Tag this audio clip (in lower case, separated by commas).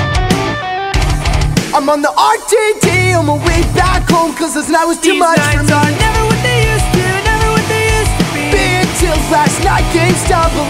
music